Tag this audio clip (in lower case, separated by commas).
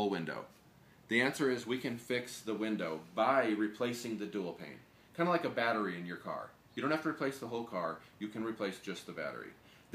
speech